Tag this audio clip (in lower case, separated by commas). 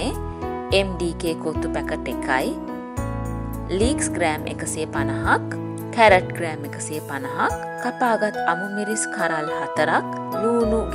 music, speech